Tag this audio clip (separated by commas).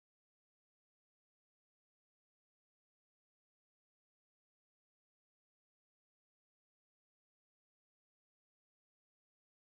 Silence